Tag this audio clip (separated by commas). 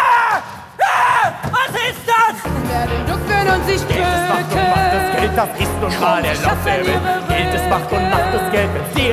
Music, Speech